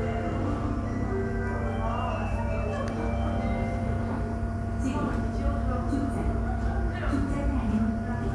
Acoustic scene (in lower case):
subway station